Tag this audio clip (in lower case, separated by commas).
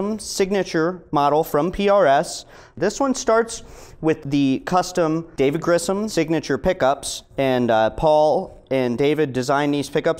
speech